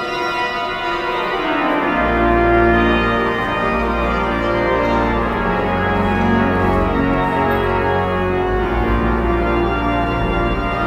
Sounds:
Music, Musical instrument, Keyboard (musical)

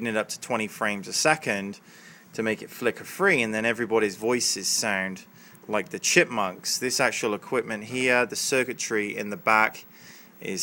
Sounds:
Speech

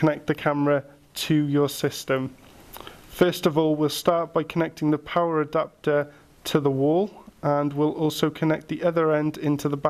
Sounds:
Speech

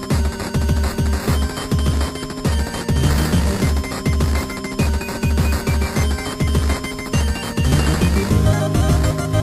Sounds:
Music, Video game music

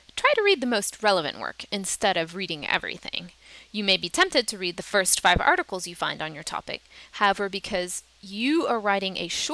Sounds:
Speech

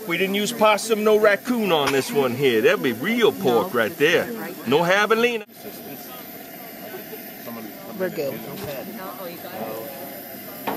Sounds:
Speech

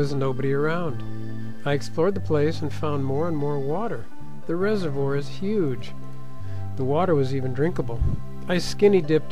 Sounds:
Speech, Music

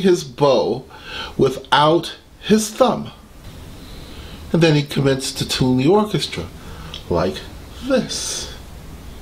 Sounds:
Speech

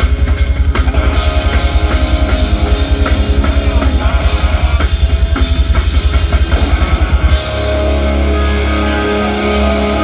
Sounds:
Music

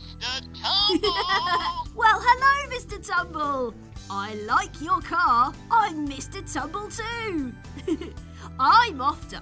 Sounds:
Music, Speech

